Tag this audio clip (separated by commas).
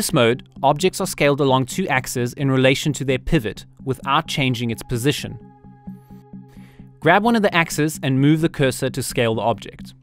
Music, Speech